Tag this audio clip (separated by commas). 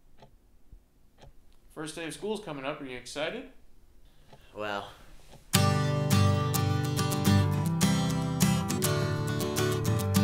Speech, Music